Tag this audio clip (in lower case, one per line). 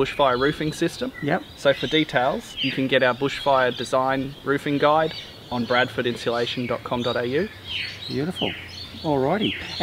speech
outside, rural or natural